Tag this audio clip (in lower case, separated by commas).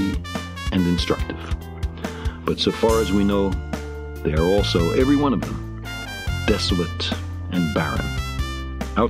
speech, music